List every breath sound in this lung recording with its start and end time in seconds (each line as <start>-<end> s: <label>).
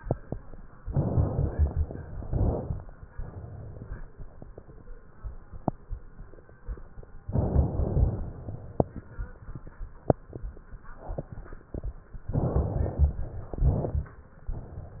0.82-2.16 s: inhalation
2.18-3.12 s: exhalation
7.25-8.89 s: inhalation
12.20-13.47 s: inhalation
13.48-14.34 s: exhalation